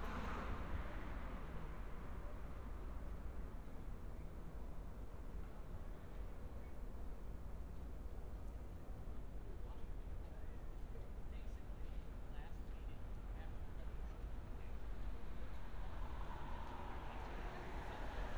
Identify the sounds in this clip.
background noise